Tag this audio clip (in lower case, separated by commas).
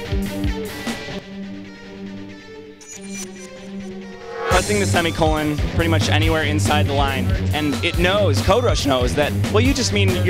speech, music